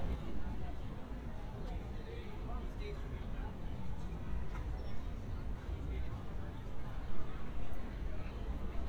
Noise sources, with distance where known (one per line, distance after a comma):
person or small group talking